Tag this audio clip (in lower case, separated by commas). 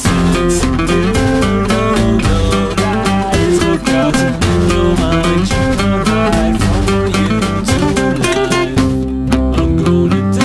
acoustic guitar, independent music, music